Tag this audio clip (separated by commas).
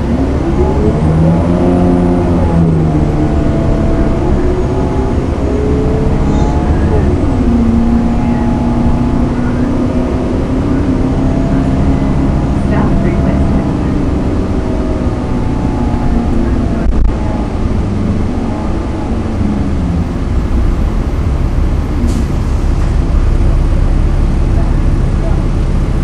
Vehicle, Motor vehicle (road), Bus